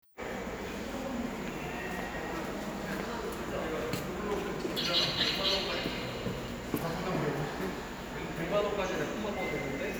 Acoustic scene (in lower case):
subway station